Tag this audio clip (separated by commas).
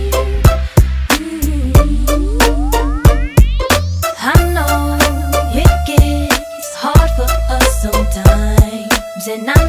Music